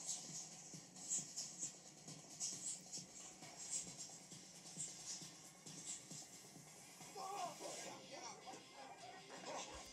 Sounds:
Music, Speech

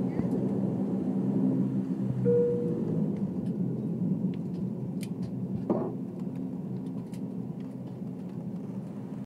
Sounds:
Vehicle, Aircraft

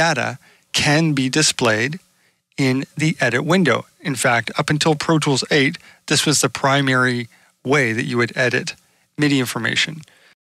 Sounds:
Speech

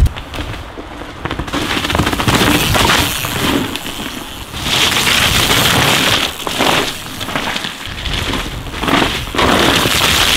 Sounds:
Vehicle, Bicycle

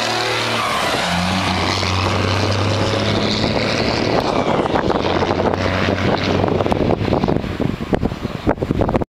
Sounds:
Vehicle

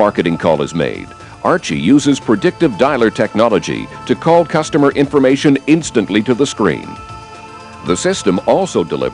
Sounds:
Speech, Music

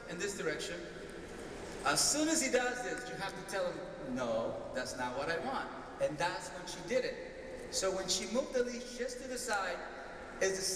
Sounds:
Speech

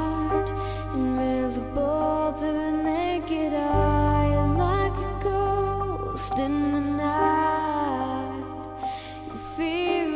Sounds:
Music

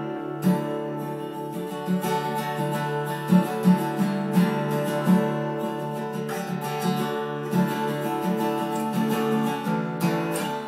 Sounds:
Music

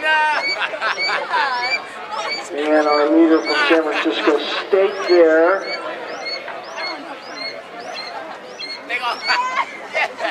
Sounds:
Speech, Chatter

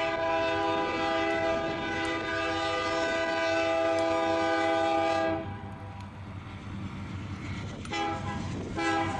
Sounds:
Rail transport, Train whistle, Vehicle, Railroad car, Train

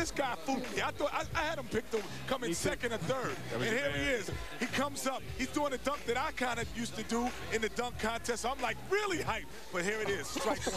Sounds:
Speech

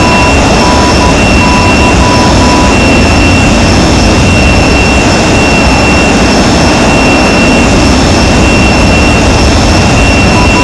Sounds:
Vehicle, Aircraft, Jet engine, Engine

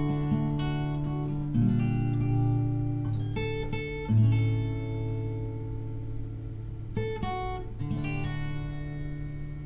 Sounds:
Music

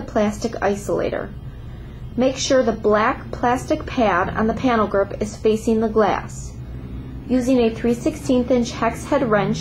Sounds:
Speech

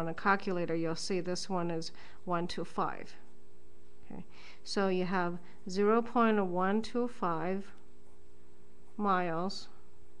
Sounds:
Speech, inside a small room

